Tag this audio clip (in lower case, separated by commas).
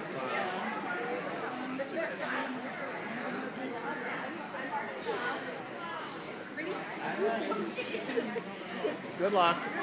speech